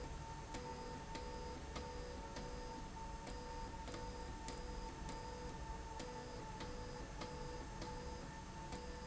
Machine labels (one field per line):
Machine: slide rail